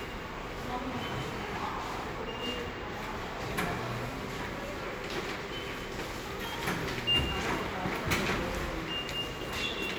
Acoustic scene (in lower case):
subway station